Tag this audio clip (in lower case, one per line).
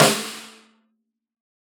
music
musical instrument
snare drum
drum
percussion